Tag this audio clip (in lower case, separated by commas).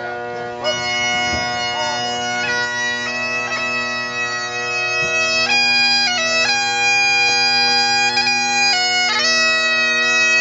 bagpipes, music